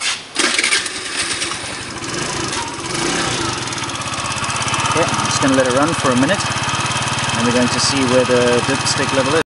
A man is working on getting an engine started